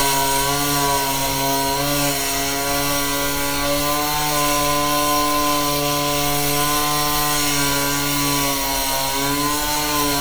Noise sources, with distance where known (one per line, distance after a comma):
unidentified powered saw, near